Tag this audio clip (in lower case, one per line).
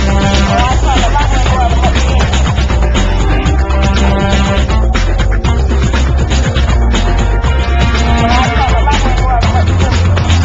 music